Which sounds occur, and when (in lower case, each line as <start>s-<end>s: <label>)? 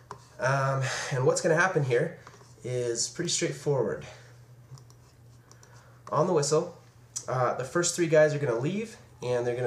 0.0s-9.6s: mechanisms
5.4s-6.0s: breathing
6.0s-6.1s: clicking
6.8s-6.9s: tick
7.1s-7.2s: human sounds
9.2s-9.6s: male speech